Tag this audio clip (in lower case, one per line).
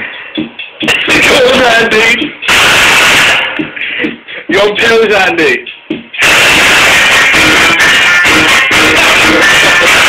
music
heavy metal
speech